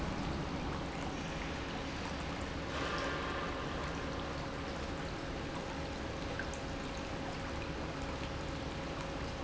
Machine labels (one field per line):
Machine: pump